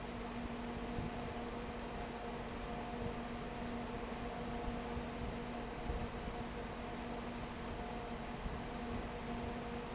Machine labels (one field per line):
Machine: fan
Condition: abnormal